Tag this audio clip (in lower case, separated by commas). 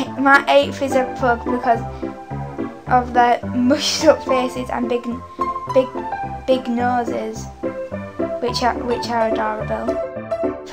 music, speech